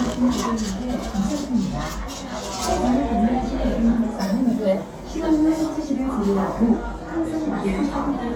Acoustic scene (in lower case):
crowded indoor space